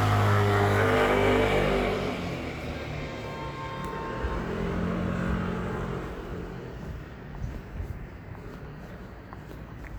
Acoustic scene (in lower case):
street